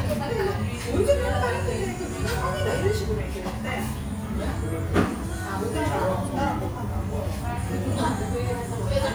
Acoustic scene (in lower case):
restaurant